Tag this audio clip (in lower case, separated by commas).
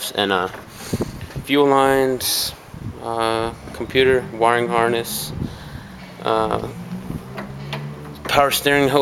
speech